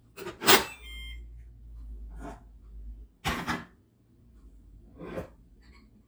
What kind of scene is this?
kitchen